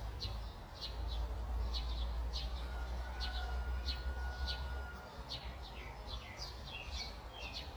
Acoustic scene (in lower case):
park